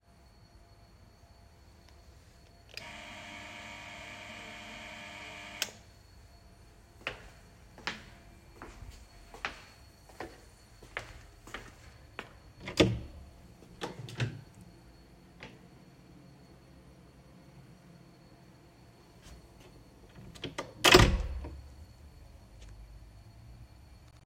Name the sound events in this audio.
bell ringing, footsteps, door